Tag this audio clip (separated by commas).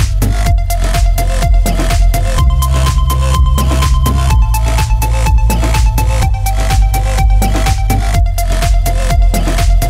Music